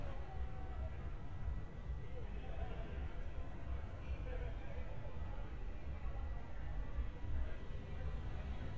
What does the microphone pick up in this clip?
unidentified human voice